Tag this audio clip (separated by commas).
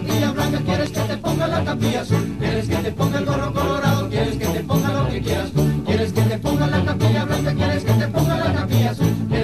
Music